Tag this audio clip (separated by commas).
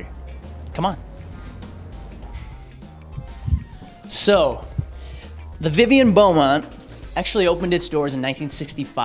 Music, Speech